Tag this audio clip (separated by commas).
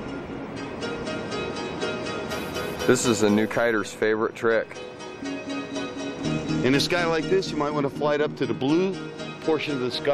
Speech, Music